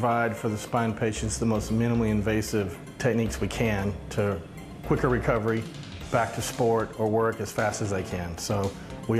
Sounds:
speech, music

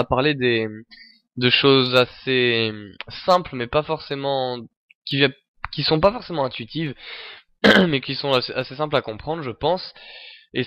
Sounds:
speech

